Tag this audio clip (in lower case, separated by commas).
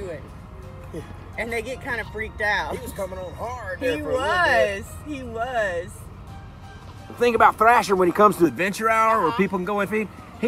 crocodiles hissing